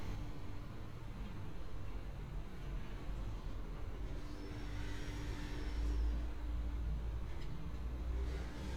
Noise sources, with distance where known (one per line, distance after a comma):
background noise